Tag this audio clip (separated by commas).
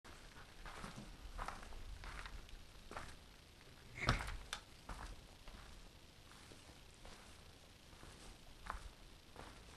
footsteps